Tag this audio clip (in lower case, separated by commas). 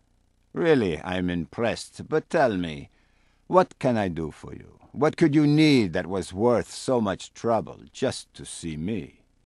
speech